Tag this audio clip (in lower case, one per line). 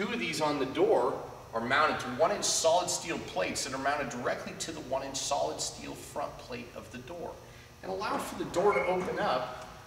speech